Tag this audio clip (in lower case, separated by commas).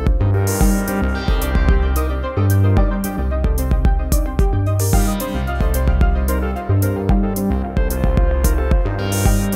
musical instrument, synthesizer, electronic music, music